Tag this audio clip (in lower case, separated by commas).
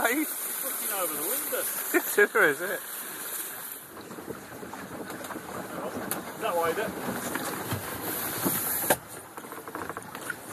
speech, stream